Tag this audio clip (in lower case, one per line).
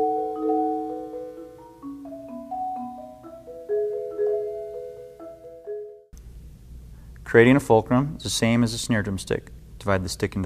speech
marimba
music
percussion